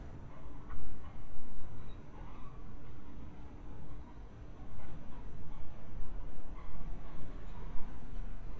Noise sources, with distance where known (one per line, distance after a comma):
background noise